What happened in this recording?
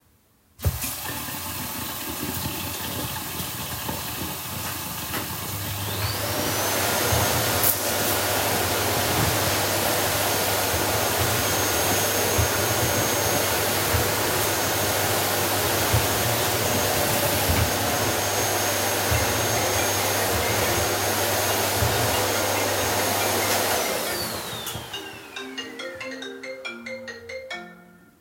Water was running, turned on the vacum cleaner then turned the water off bevore my phone started to ring.